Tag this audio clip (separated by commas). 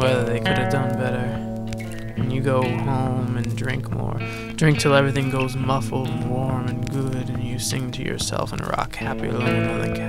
Music, Speech